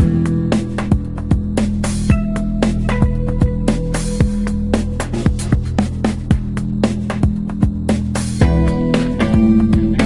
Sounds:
music

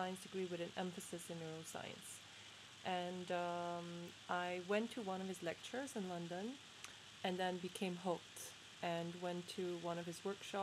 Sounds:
speech

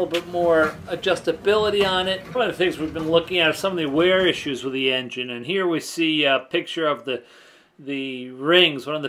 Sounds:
speech

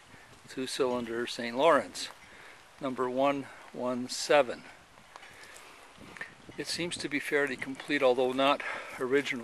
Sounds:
speech

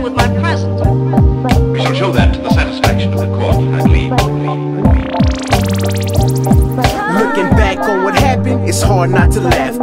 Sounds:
music
sound effect

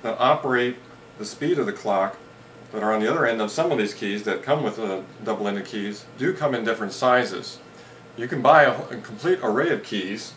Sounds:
speech

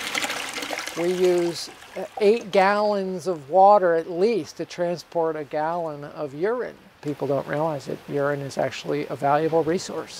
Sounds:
speech

